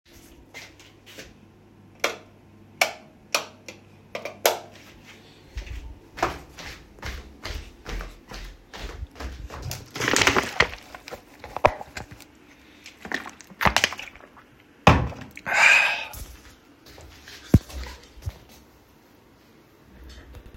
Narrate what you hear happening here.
opening the switch and walking toward bed